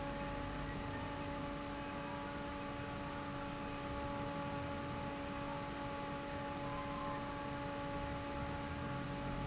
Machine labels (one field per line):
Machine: fan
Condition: normal